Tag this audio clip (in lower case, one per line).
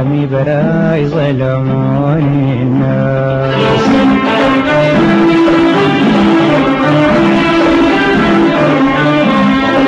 music